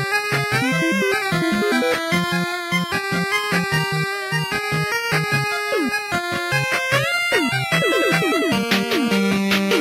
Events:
[0.00, 9.80] music
[0.00, 9.80] video game sound

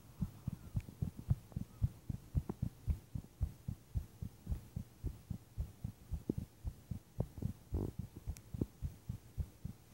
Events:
[0.00, 9.93] background noise
[0.16, 0.53] heartbeat
[0.71, 1.05] heartbeat
[1.17, 1.57] heartbeat
[1.77, 2.10] heartbeat
[2.29, 2.48] heartbeat
[2.59, 2.94] heartbeat
[3.13, 3.44] heartbeat
[3.63, 3.96] heartbeat
[4.18, 4.51] heartbeat
[4.72, 5.09] heartbeat
[5.27, 5.64] heartbeat
[5.81, 6.12] heartbeat
[6.24, 6.31] tick
[6.35, 6.69] heartbeat
[6.89, 7.22] heartbeat
[7.34, 7.78] heartbeat
[7.73, 7.90] noise
[7.98, 8.28] heartbeat
[8.28, 8.39] tick
[8.51, 8.86] heartbeat
[9.10, 9.42] heartbeat
[9.61, 9.93] heartbeat

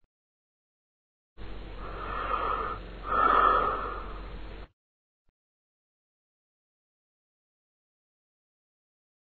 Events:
[1.35, 4.67] background noise
[1.78, 2.76] breathing
[2.98, 4.21] breathing

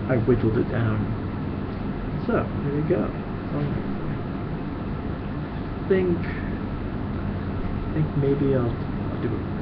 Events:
[0.00, 0.99] man speaking
[0.00, 9.61] mechanisms
[1.64, 1.83] generic impact sounds
[2.23, 2.42] man speaking
[2.61, 3.16] man speaking
[3.47, 3.69] man speaking
[5.77, 6.57] man speaking
[7.88, 8.71] man speaking
[8.65, 8.74] tick
[9.10, 9.37] generic impact sounds

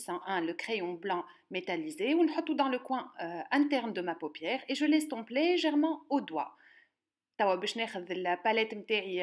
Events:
[0.00, 1.21] female speech
[1.21, 1.39] breathing
[1.50, 5.98] female speech
[6.09, 6.48] female speech
[6.52, 6.93] breathing
[7.37, 9.22] female speech

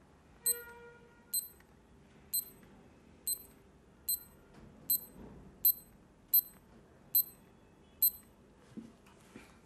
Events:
[7.16, 8.14] honking
[7.99, 8.22] alarm clock
[8.72, 8.89] tap
[9.01, 9.12] clicking
[9.28, 9.65] breathing

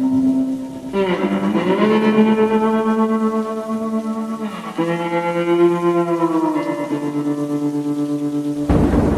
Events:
[0.00, 9.15] music
[0.00, 9.15] rain on surface

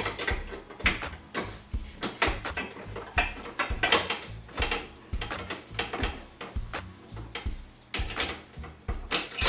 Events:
[0.00, 0.30] generic impact sounds
[0.00, 9.45] mechanisms
[0.00, 9.45] music
[0.45, 0.52] generic impact sounds
[0.67, 1.12] generic impact sounds
[1.30, 1.41] generic impact sounds
[1.95, 2.06] generic impact sounds
[2.15, 2.27] generic impact sounds
[2.42, 3.61] generic impact sounds
[3.79, 4.18] generic impact sounds
[4.49, 4.75] generic impact sounds
[5.09, 5.50] generic impact sounds
[5.71, 6.07] generic impact sounds
[6.36, 6.46] generic impact sounds
[7.31, 7.40] generic impact sounds
[7.93, 8.29] generic impact sounds
[8.50, 8.64] generic impact sounds
[9.07, 9.20] generic impact sounds

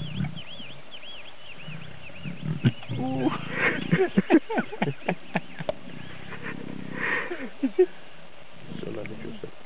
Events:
[0.00, 0.73] tweet
[0.00, 0.81] roar
[0.00, 9.65] wind
[0.90, 1.29] tweet
[1.39, 1.84] tweet
[1.51, 3.94] roar
[2.01, 2.41] tweet
[2.57, 6.10] tweet
[2.63, 2.67] tick
[2.63, 3.33] female speech
[2.63, 9.65] conversation
[3.45, 3.78] breathing
[3.88, 5.73] laughter
[4.77, 4.83] tick
[5.64, 5.72] tick
[5.70, 7.26] roar
[6.28, 6.55] breathing
[6.88, 7.27] breathing
[7.28, 7.84] laughter
[8.59, 9.46] roar
[8.65, 9.51] male speech
[9.04, 9.07] tick

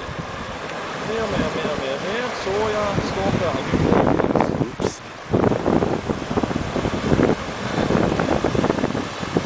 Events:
[0.00, 1.66] wind noise (microphone)
[0.00, 9.45] car
[0.00, 9.45] water
[1.05, 3.69] man speaking
[2.72, 4.88] wind noise (microphone)
[5.28, 9.45] wind noise (microphone)

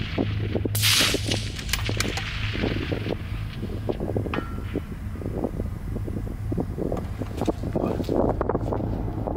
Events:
[0.00, 9.35] mechanisms
[0.00, 9.35] wind noise (microphone)
[0.72, 1.17] surface contact

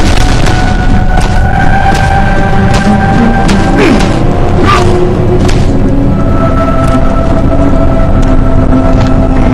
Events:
[0.00, 1.37] sound effect
[0.00, 9.53] music
[0.00, 9.53] video game sound
[1.90, 2.19] sound effect
[2.75, 2.99] sound effect
[3.39, 4.15] sound effect
[4.59, 5.00] sound effect
[5.36, 5.79] sound effect

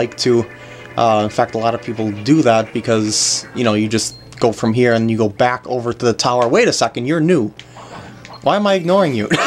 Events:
[0.00, 0.43] man speaking
[0.00, 9.45] music
[0.06, 0.16] tick
[0.52, 0.91] breathing
[0.79, 0.88] tick
[0.96, 4.10] man speaking
[3.26, 3.45] bleep
[4.07, 4.27] bleep
[4.21, 4.44] generic impact sounds
[4.35, 7.51] man speaking
[4.89, 5.07] bleep
[6.37, 6.46] tick
[7.54, 7.62] tick
[7.68, 8.20] breathing
[7.73, 8.40] generic impact sounds
[8.20, 8.31] tick
[8.30, 8.38] bleep
[8.43, 9.28] man speaking

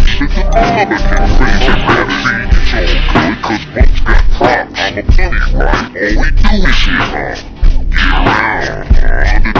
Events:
[0.00, 2.43] synthetic singing
[0.00, 9.55] music
[2.60, 7.52] synthetic singing
[7.90, 9.55] synthetic singing

